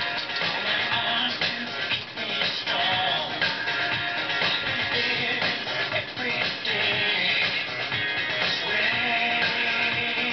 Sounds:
exciting music, music

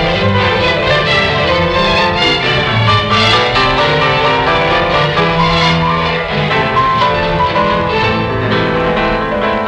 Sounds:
electric piano, keyboard (musical), piano

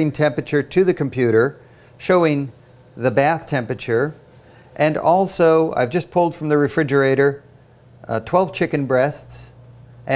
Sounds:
speech

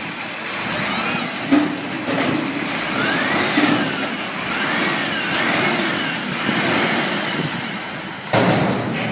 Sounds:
outside, urban or man-made, vehicle, truck

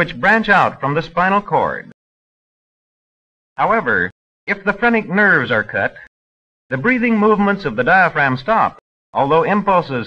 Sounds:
speech

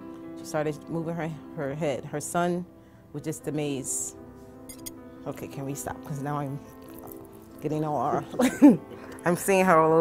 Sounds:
speech

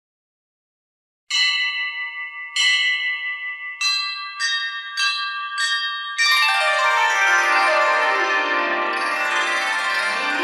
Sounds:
music

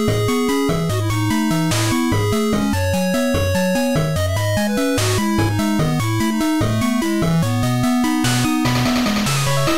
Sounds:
background music, music

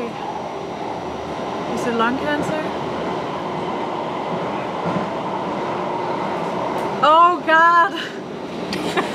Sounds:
subway, train, rail transport, train wagon

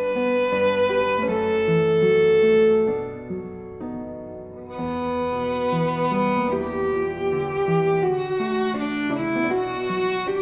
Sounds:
musical instrument, fiddle, music

